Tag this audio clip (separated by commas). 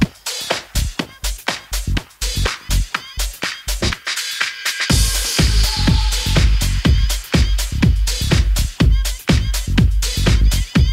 Music